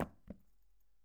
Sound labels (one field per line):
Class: object falling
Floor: carpet